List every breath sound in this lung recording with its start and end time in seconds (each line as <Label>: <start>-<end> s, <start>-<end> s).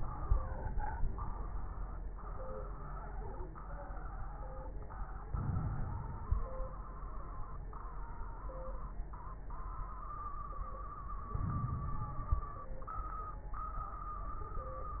Inhalation: 5.24-6.45 s, 11.34-12.54 s
Crackles: 5.24-6.45 s, 11.34-12.54 s